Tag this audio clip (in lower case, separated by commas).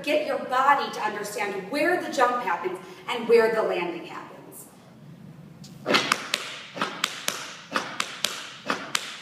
inside a large room or hall, speech